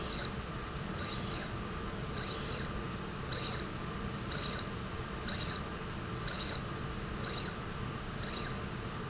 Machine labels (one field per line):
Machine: slide rail